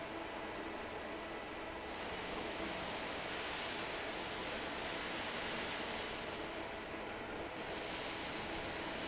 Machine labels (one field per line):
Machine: fan